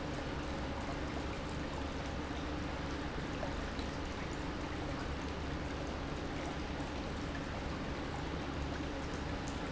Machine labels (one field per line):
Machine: pump